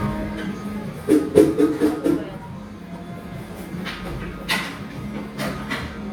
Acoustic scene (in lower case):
cafe